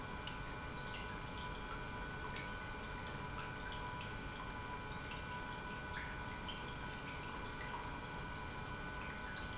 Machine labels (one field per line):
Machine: pump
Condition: normal